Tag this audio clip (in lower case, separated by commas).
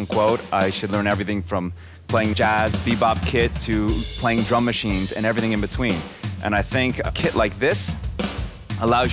drum kit, drum, music, speech, musical instrument